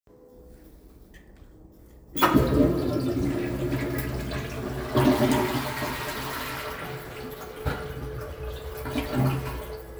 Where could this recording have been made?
in a restroom